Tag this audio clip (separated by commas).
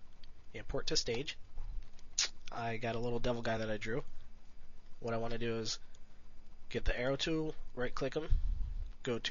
Speech